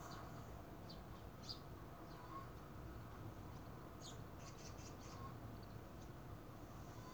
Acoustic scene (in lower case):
park